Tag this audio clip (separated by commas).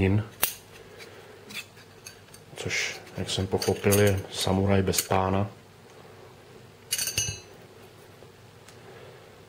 Speech, Tools, inside a small room